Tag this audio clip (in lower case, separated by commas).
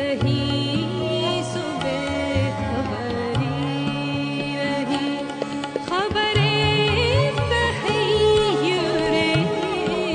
carnatic music, music